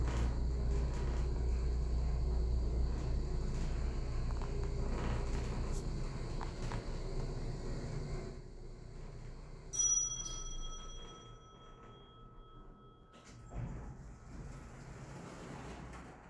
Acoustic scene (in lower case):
elevator